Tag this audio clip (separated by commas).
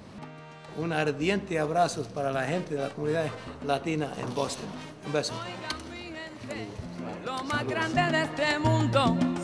Speech, Salsa music